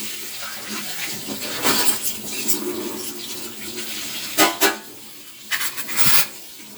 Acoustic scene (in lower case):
kitchen